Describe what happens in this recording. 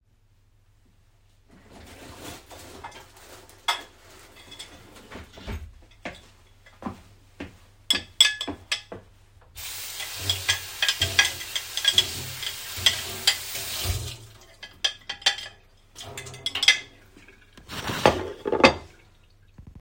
i opened the kithcen drawer, took out cutleries,walked to the tap, turned on the tap, washed the cutleries, placed the cutleris on top of the table top.